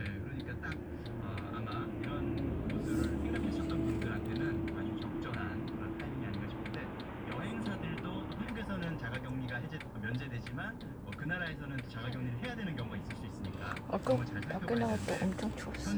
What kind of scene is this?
car